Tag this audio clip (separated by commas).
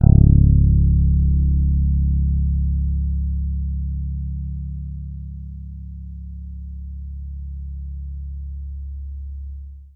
Guitar, Bass guitar, Musical instrument, Music, Plucked string instrument